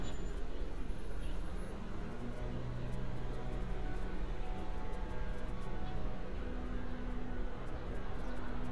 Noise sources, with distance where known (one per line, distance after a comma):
background noise